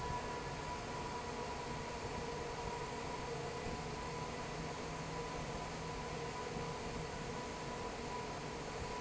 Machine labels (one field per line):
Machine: fan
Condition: normal